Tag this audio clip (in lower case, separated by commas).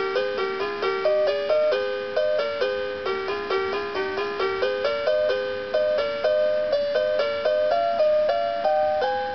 music